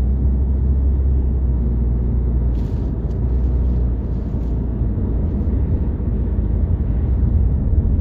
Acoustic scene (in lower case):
car